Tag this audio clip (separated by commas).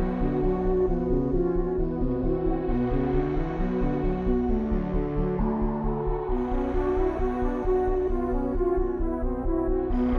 Music